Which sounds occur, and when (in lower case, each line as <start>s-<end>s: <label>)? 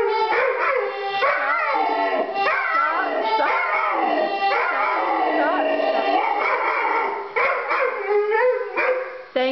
0.0s-6.4s: music
0.3s-0.8s: bark
1.2s-1.5s: bark
1.3s-2.2s: woman speaking
1.6s-2.4s: growling
2.4s-2.6s: bark
2.6s-3.4s: growling
2.6s-3.4s: woman speaking
3.4s-3.6s: bark
3.5s-4.5s: growling
4.5s-4.7s: bark
4.6s-4.9s: woman speaking
4.7s-6.4s: growling
5.4s-5.6s: woman speaking
6.2s-7.2s: bark
6.4s-9.5s: mechanisms
7.4s-8.0s: bark
8.1s-9.2s: growling
8.3s-8.5s: bark
8.8s-9.0s: bark